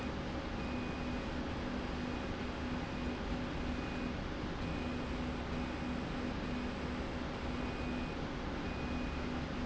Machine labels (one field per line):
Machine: slide rail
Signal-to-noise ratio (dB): -6 dB